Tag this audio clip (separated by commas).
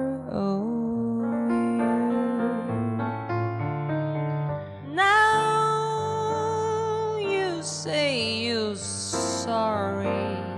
Piano, Musical instrument, Singing, Music